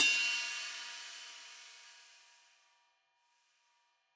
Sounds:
Music, Percussion, Cymbal, Musical instrument, Hi-hat

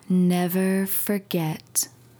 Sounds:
Human voice, Speech, woman speaking

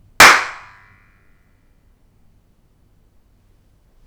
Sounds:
Hands, Clapping

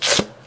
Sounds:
home sounds, Tearing, duct tape

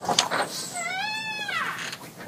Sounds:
Squeak

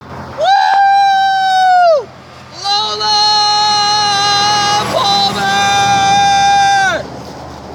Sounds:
roadway noise, Motor vehicle (road), Vehicle

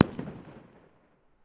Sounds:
Explosion, Fireworks

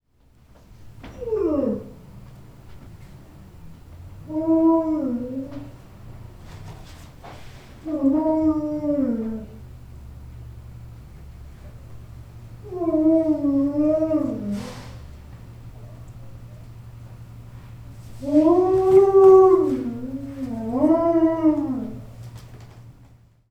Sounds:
Animal, pets, Dog

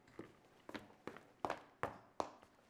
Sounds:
footsteps

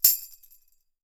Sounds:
Music, Tambourine, Percussion, Musical instrument

